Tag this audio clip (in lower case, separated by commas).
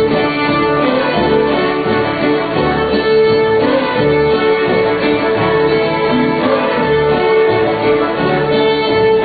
violin, musical instrument, music